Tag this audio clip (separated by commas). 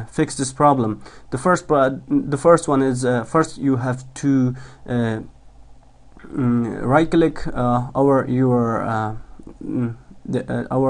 Speech